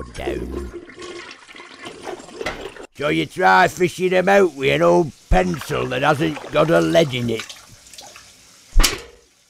Toilet flushing then a man speaking with a thick accent